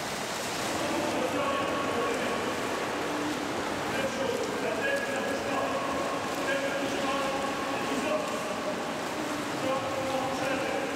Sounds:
swimming

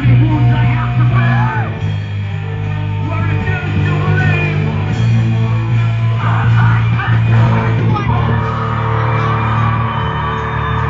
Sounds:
speech, music, crowd

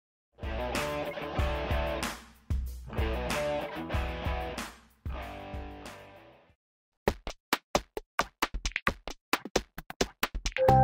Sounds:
music, drum machine

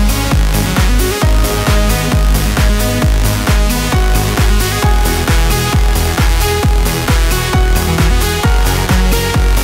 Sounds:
trance music, music

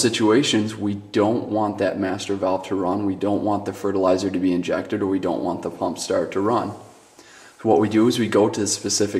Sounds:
speech

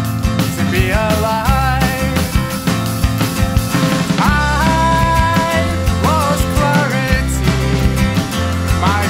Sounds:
music

